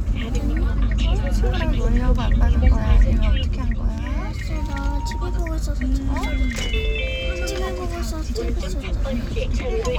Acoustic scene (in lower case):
car